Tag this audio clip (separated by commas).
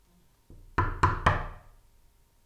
Knock, Door, Domestic sounds